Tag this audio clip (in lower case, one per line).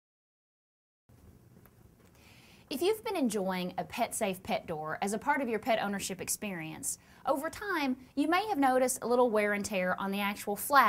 speech